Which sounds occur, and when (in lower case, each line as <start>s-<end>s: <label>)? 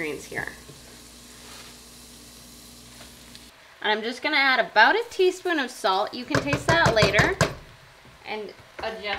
0.0s-0.6s: woman speaking
0.0s-3.5s: mechanisms
0.0s-9.1s: sizzle
0.3s-0.4s: cutlery
0.6s-0.7s: cutlery
1.4s-1.8s: creak
2.9s-3.1s: generic impact sounds
3.3s-3.4s: generic impact sounds
3.8s-7.4s: woman speaking
5.9s-6.1s: generic impact sounds
6.3s-7.5s: cutlery
8.0s-8.1s: generic impact sounds
8.3s-8.5s: woman speaking
8.5s-8.6s: generic impact sounds
8.7s-8.9s: generic impact sounds
9.0s-9.1s: generic impact sounds